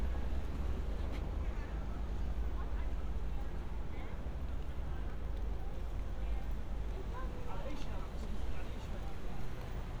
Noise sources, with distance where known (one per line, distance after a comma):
person or small group talking, far